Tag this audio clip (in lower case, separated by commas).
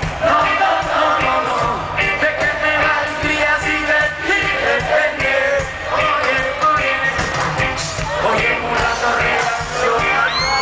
music